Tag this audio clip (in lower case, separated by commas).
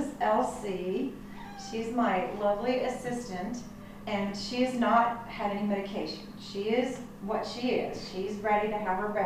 speech, animal, pets